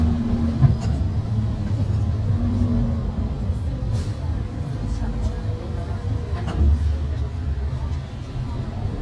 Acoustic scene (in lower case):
bus